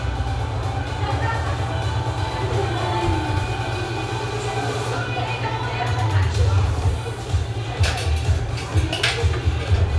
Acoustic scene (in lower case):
cafe